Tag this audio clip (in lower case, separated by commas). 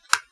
tap